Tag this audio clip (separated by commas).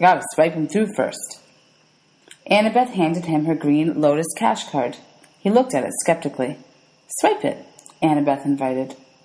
Speech